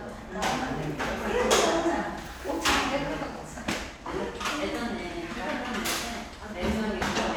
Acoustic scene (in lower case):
crowded indoor space